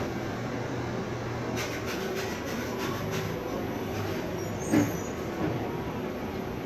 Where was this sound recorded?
in a cafe